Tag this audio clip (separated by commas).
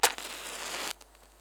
Fire